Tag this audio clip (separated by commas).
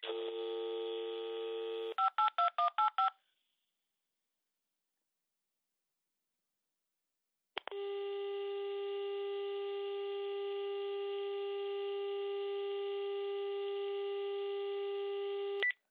Alarm, Telephone